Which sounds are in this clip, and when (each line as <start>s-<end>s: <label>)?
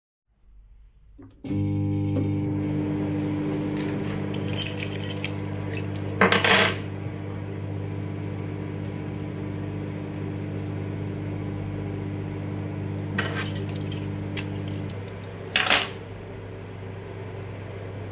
1.4s-18.1s: microwave
3.5s-6.9s: keys
13.1s-16.1s: keys